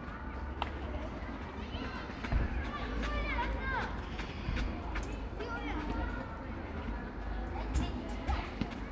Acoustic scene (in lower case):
park